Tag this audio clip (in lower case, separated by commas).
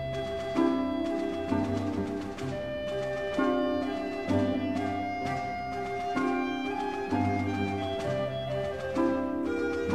music, classical music